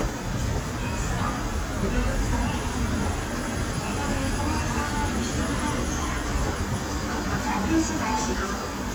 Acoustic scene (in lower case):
subway station